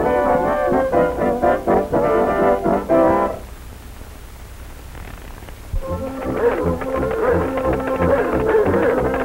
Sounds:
music

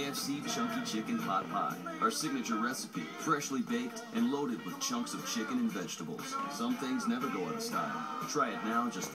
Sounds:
speech, music

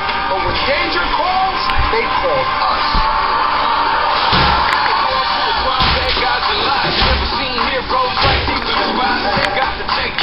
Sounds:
speech, music

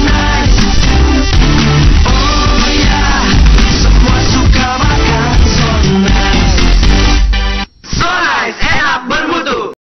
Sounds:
speech, music

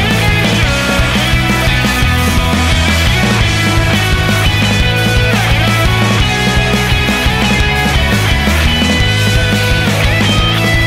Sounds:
music

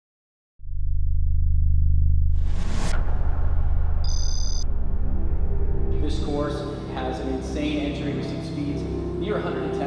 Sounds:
music, speech

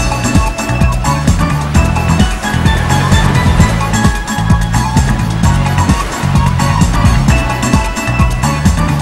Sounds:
video game music, soundtrack music, music, tender music, background music

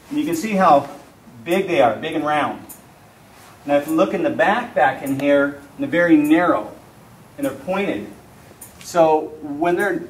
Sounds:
speech

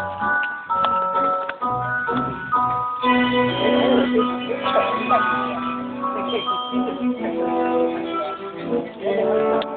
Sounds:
music, speech

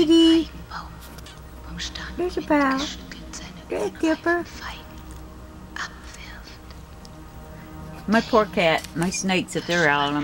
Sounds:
speech, music

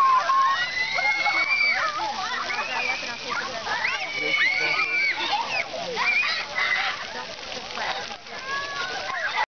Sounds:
water, speech

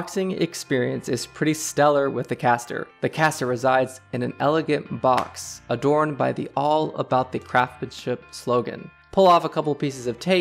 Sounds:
speech, music

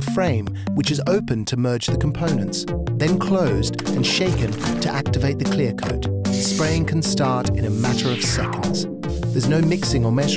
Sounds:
music, speech, spray

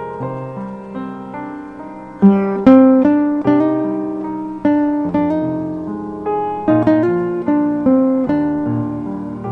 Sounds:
guitar, acoustic guitar, musical instrument, plucked string instrument, strum, music

